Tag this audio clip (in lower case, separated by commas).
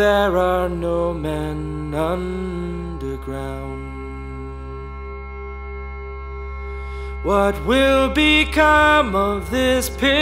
music